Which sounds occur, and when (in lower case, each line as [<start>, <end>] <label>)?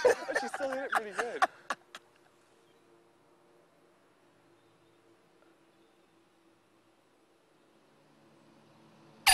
[0.00, 9.33] wind
[0.01, 2.00] laughter
[0.23, 1.42] male speech
[2.60, 2.81] bird song
[4.50, 5.03] bird song
[5.63, 6.11] bird song